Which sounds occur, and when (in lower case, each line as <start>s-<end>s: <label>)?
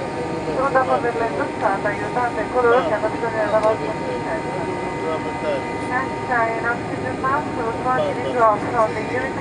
0.0s-0.9s: man speaking
0.0s-9.4s: aircraft
0.0s-9.4s: conversation
0.0s-9.4s: wind
0.5s-3.8s: woman speaking
1.6s-1.6s: tick
2.5s-2.9s: man speaking
3.6s-3.6s: tick
3.8s-5.7s: man speaking
5.8s-6.1s: woman speaking
6.3s-6.7s: woman speaking
7.0s-8.6s: woman speaking
7.9s-8.6s: man speaking
8.7s-9.4s: woman speaking